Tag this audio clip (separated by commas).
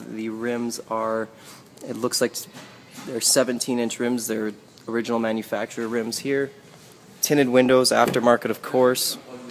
Speech